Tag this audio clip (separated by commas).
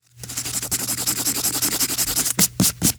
Domestic sounds, Writing